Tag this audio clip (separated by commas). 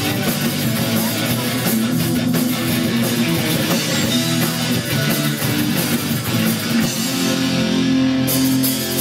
Musical instrument, Plucked string instrument, Strum, Music, Guitar